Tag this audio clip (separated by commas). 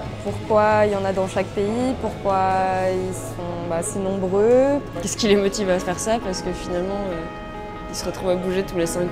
Speech, Music